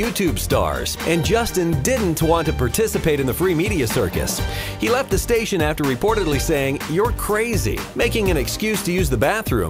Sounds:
speech
music

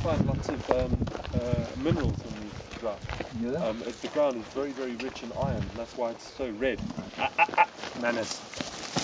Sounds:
speech

